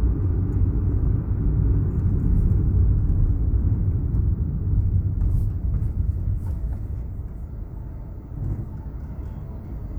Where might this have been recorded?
in a car